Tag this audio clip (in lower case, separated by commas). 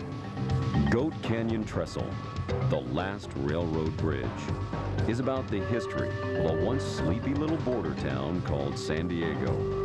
speech, music